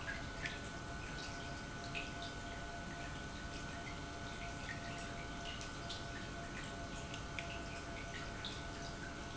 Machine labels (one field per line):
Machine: pump